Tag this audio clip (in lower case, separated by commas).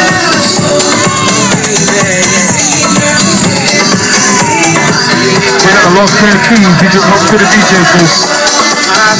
house music, music, speech